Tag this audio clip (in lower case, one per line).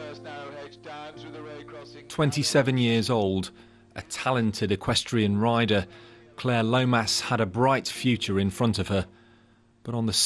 speech
music